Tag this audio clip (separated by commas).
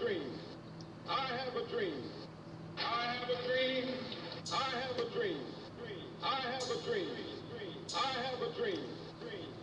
Speech synthesizer, man speaking, Speech